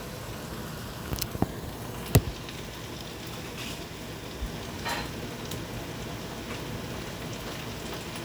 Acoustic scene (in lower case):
kitchen